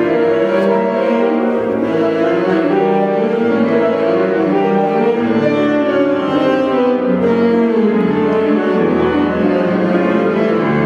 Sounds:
violin, music, musical instrument

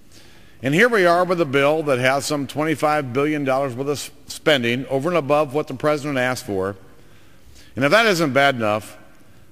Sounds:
man speaking, monologue, speech

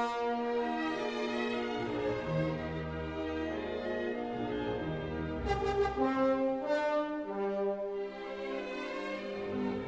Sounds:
music

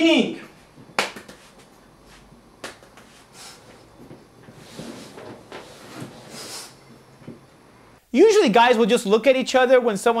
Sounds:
man speaking, speech

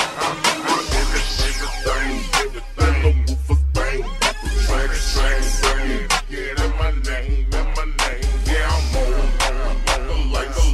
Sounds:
music

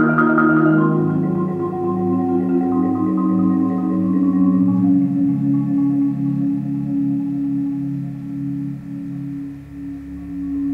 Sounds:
xylophone, music

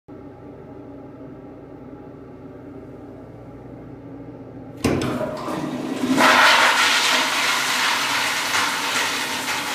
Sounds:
toilet flushing

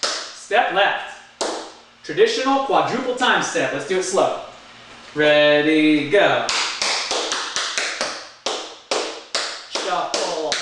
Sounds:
speech, tap

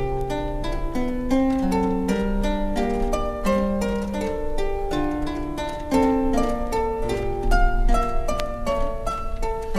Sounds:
pizzicato

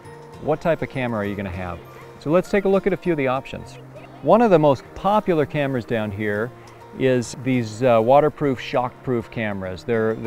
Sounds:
music, speech

